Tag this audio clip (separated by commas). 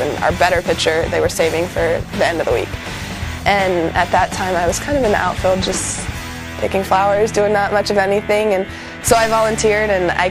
Speech, Music